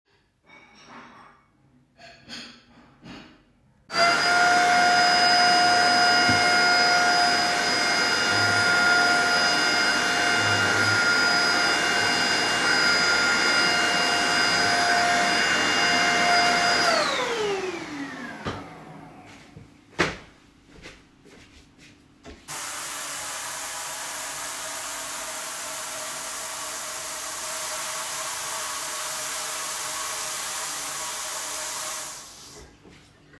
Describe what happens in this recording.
I sort the dishes first, turn on the vacuum and once I was done, turned on the tap to let the water run